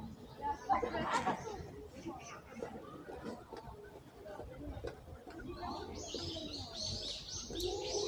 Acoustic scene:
residential area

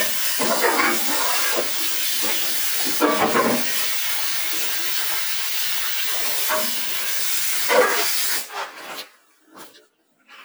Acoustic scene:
kitchen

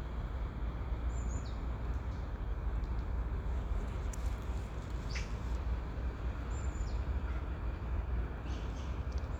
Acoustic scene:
park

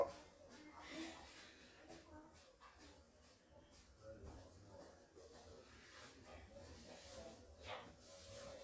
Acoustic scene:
restroom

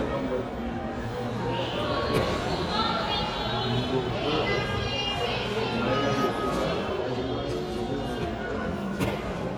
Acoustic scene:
crowded indoor space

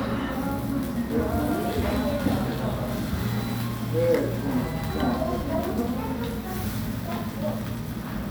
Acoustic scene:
restaurant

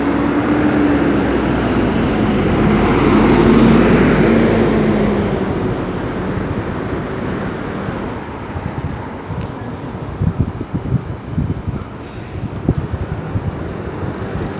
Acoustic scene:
street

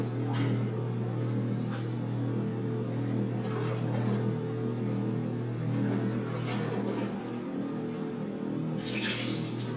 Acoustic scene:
restroom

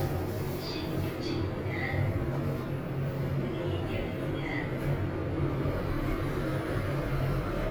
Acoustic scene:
elevator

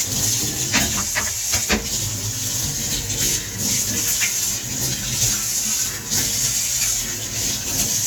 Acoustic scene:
kitchen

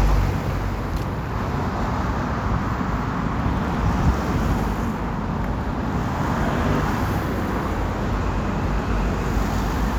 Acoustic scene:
street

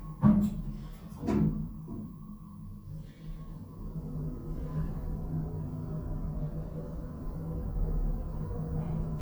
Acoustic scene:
elevator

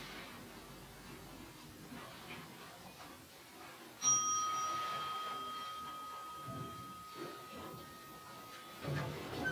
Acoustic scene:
elevator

